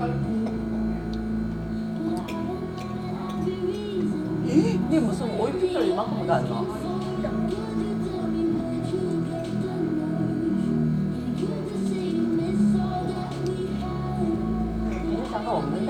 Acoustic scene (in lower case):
restaurant